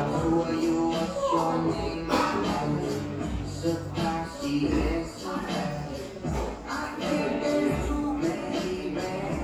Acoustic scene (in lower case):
crowded indoor space